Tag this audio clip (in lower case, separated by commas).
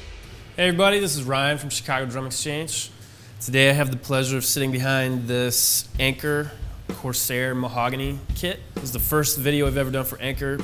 musical instrument, speech, drum, music